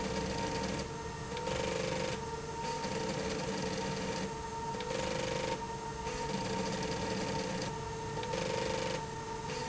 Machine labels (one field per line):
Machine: slide rail